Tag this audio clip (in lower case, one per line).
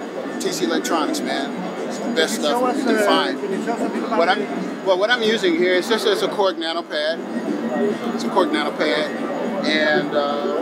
music
speech